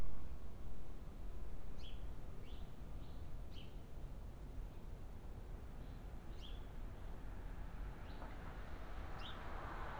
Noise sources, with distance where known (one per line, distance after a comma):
background noise